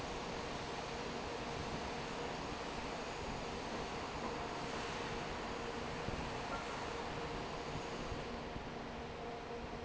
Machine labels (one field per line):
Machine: fan